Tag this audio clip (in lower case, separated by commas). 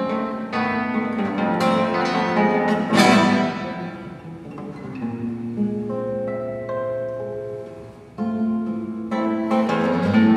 plucked string instrument, guitar, musical instrument, strum, acoustic guitar, music